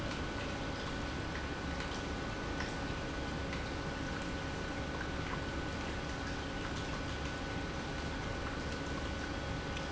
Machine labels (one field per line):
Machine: pump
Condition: normal